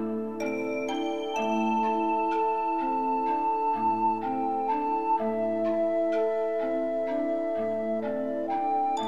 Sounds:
music

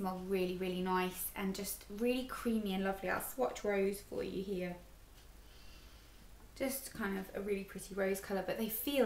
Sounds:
speech, inside a small room

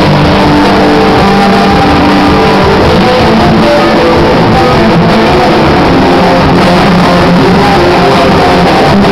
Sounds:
rumble, music

